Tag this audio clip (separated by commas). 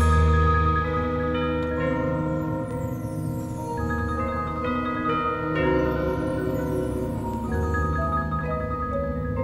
Vibraphone, Music, playing vibraphone